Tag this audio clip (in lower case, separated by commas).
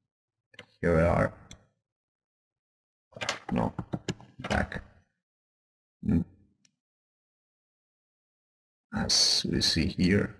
speech